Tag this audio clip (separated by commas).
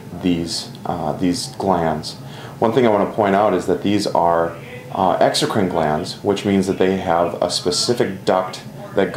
Speech